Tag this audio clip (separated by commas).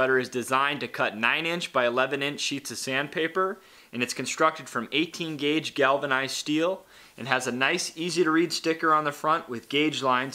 Speech